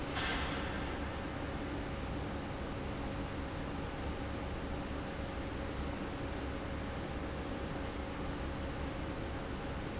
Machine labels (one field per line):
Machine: fan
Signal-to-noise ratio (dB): -6 dB